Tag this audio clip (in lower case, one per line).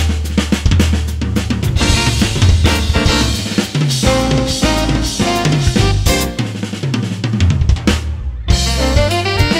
brass instrument
saxophone